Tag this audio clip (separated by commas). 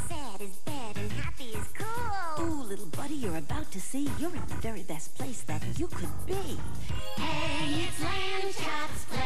Music